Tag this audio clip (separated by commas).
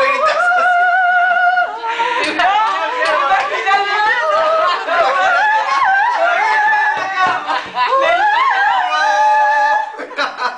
Speech, Female singing, Opera